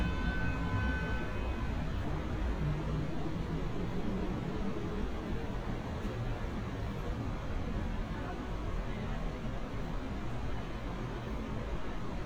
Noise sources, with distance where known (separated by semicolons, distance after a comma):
car horn, far; person or small group talking